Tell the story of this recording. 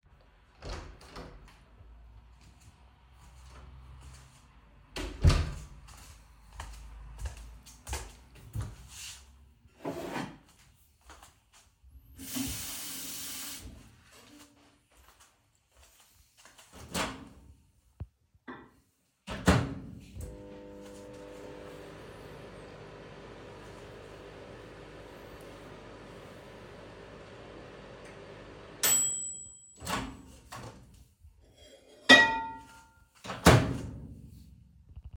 I opened the door, entered the kitchen then took a glass filled it with water and microwaved it